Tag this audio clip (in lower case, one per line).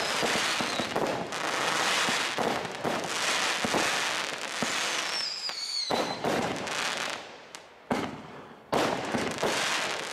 fireworks banging
firecracker
fireworks